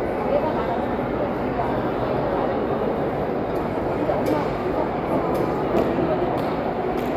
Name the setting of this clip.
crowded indoor space